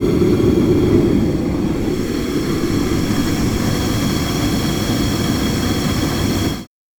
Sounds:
Fire

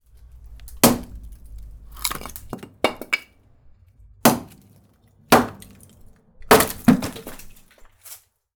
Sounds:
Wood

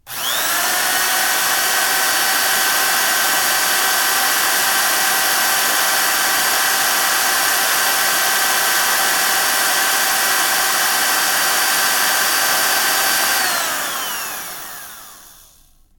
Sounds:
Power tool, Drill, Tools

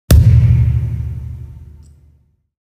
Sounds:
thud

